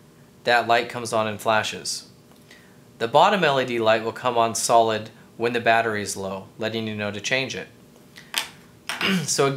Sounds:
Tap, Speech

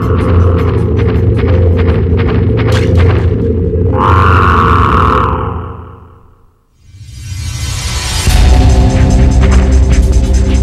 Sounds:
inside a large room or hall, Music

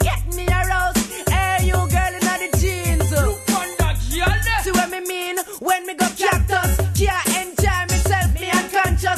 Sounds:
Afrobeat, Music

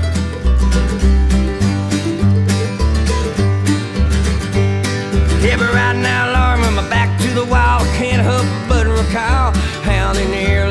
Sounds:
Bluegrass, Singing

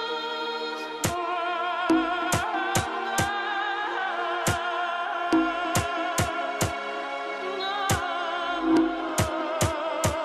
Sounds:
Music

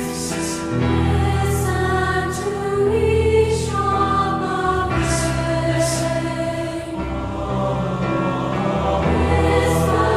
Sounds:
Music

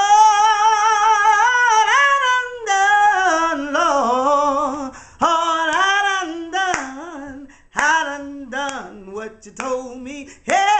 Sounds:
Female singing

